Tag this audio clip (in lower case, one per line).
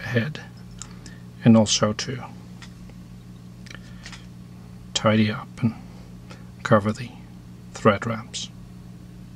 speech